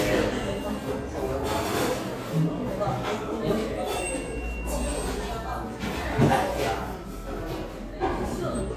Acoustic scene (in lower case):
cafe